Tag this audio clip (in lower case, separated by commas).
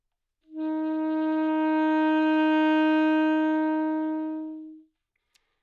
wind instrument, musical instrument, music